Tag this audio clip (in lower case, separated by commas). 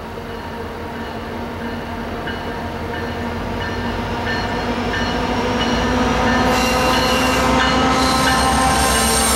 train horning